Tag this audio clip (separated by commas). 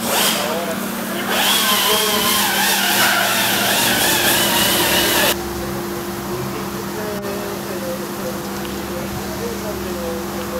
Speech